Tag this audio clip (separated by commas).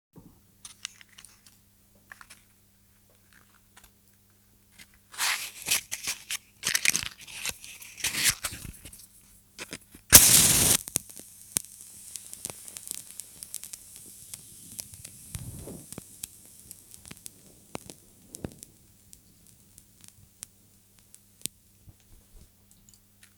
Fire